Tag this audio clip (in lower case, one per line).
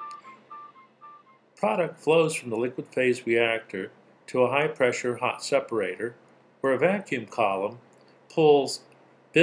music
speech